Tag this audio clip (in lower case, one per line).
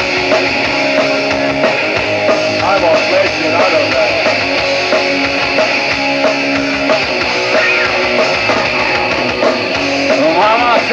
music
speech